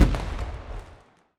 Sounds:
explosion, fireworks

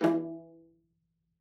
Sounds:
music, musical instrument, bowed string instrument

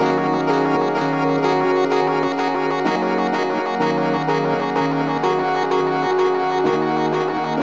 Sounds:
music, piano, musical instrument, keyboard (musical)

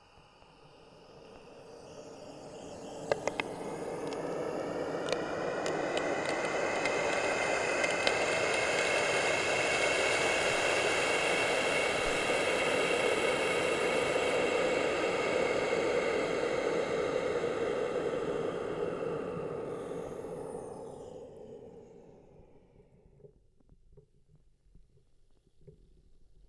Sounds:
home sounds, water tap

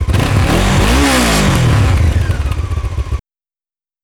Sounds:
vehicle, engine, accelerating, motorcycle, motor vehicle (road)

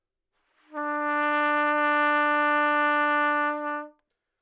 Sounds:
trumpet, brass instrument, music, musical instrument

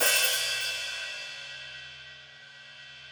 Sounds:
hi-hat, musical instrument, percussion, music, cymbal

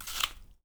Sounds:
mastication

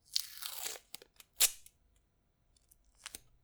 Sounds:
duct tape, tearing, domestic sounds

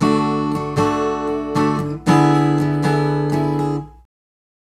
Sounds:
music, strum, acoustic guitar, musical instrument, guitar, plucked string instrument

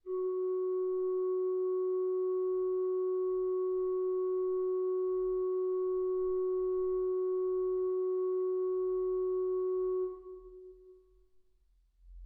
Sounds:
music, organ, keyboard (musical), musical instrument

